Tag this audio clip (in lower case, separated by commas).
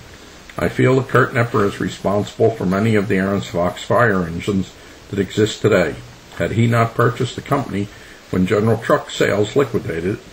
speech